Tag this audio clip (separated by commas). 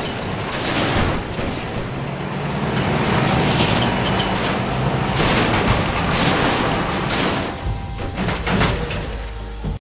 Vehicle, Music